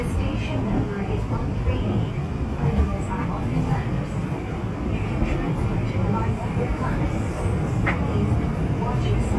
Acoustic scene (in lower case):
subway train